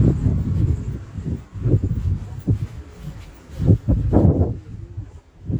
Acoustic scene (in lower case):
residential area